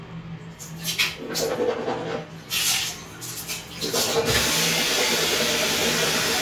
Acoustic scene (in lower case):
restroom